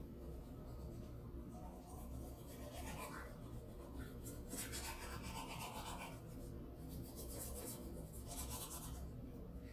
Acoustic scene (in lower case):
restroom